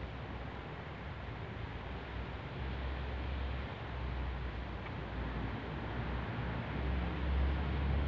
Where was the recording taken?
in a residential area